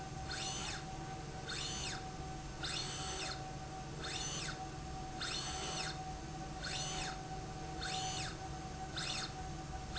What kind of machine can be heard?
slide rail